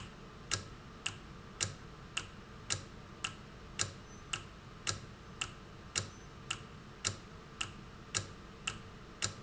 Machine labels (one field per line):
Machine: valve